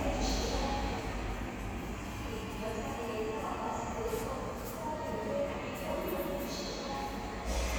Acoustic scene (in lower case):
subway station